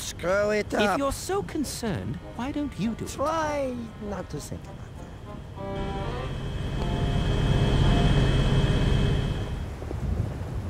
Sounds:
Music, Speech

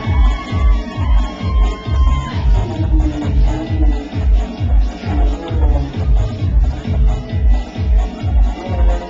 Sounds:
Music, Speech

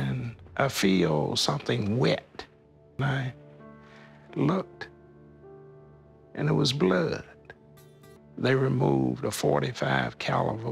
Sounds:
Speech, Music

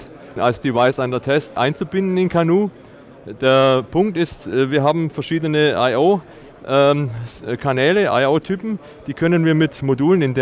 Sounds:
Speech

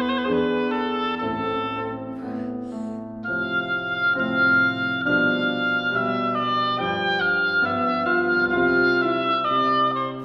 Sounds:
playing oboe

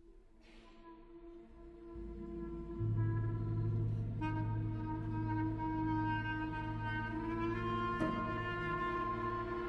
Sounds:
Orchestra, Clarinet, Music, Percussion

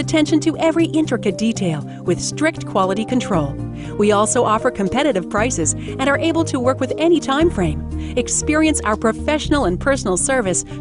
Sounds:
Music, Speech

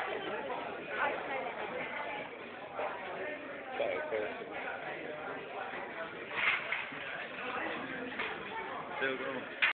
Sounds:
Speech

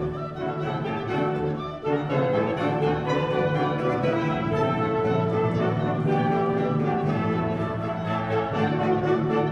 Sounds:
Music, inside a large room or hall, Orchestra

